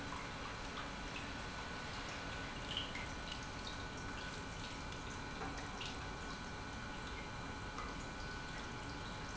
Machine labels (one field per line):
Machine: pump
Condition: normal